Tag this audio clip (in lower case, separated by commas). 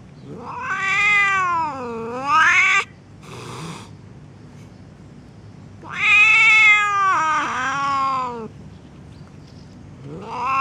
cat hissing